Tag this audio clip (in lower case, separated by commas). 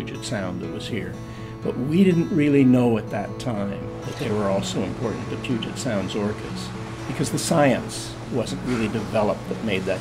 music